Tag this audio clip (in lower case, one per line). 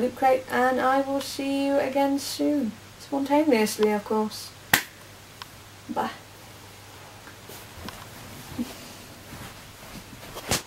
speech